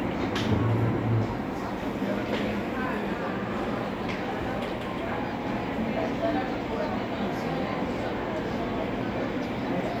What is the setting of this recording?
cafe